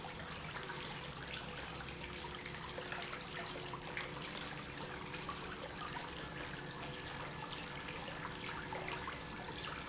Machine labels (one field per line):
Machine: pump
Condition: normal